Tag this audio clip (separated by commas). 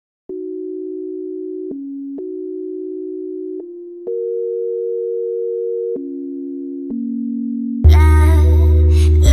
Electronic music, Dubstep, Music